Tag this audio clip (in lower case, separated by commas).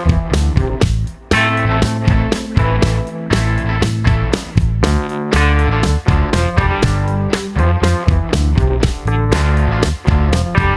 music